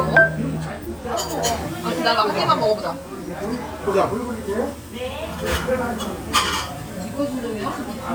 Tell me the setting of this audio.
restaurant